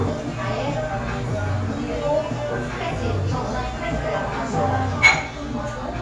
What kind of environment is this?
cafe